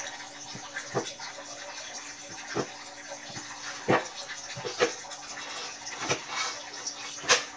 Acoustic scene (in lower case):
kitchen